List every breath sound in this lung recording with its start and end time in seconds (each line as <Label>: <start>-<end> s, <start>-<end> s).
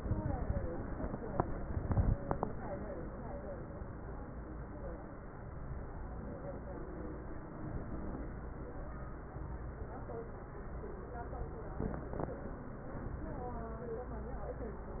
Inhalation: 1.65-2.14 s, 7.53-8.30 s
Crackles: 1.65-2.14 s